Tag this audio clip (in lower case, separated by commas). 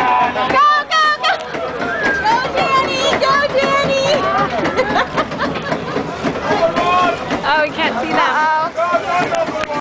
vehicle, speech, music